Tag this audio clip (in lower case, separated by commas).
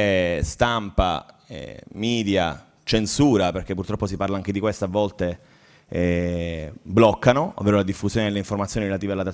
speech